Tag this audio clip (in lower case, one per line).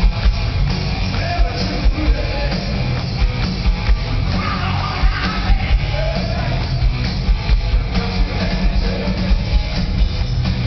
music